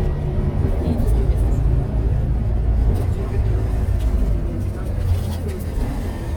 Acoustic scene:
bus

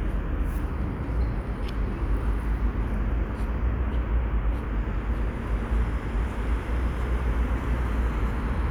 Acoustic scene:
residential area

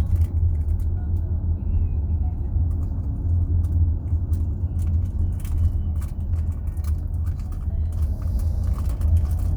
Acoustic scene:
car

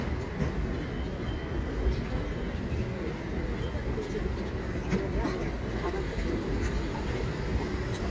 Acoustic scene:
street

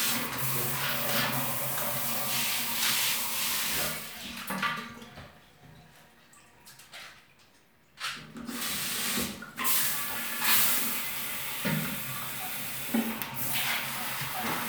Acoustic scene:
restroom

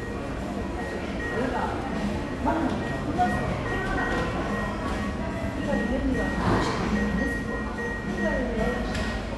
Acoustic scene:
cafe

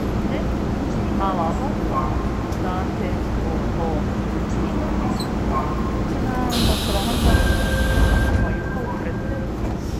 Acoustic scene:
subway train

